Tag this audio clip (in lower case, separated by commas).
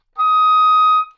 musical instrument, music, wind instrument